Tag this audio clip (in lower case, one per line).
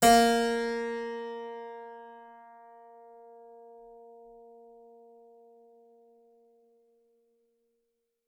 musical instrument
keyboard (musical)
music